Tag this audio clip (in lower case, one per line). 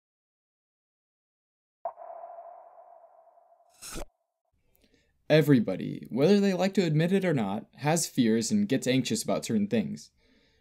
speech